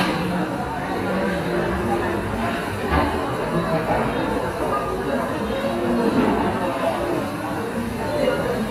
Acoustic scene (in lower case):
cafe